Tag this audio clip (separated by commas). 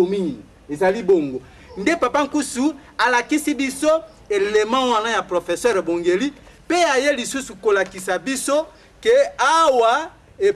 Speech